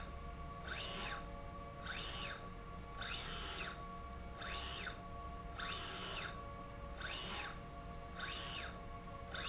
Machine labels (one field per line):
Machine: slide rail